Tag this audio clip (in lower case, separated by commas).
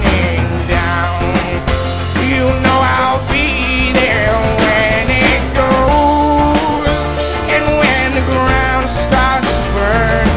music